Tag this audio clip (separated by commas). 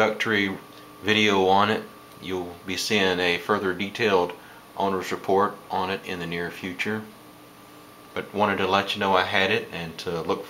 Speech